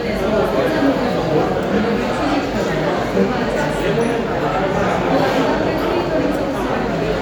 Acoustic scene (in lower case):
crowded indoor space